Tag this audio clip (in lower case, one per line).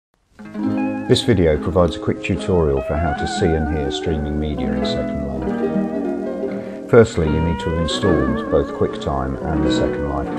speech
music